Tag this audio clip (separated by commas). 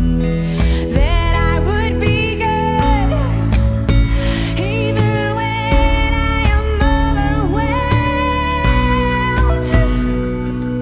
Independent music